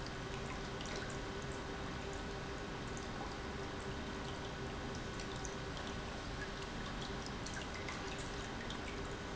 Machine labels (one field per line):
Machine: pump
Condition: normal